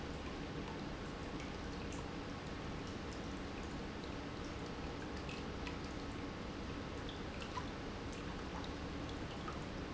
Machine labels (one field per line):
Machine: pump